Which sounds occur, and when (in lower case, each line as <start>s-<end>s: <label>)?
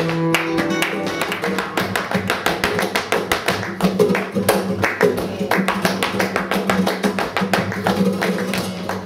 0.0s-9.0s: music
0.3s-9.0s: clapping
1.8s-3.6s: tap dance
5.5s-7.7s: tap dance